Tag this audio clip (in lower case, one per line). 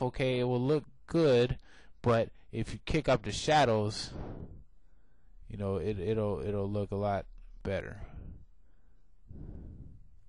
speech